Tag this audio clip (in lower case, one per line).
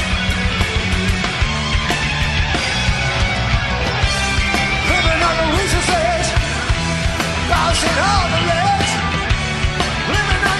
singing